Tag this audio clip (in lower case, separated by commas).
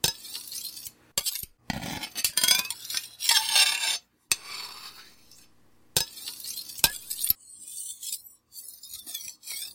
cutlery, domestic sounds